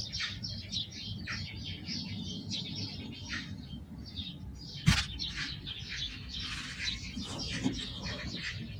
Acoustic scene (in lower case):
park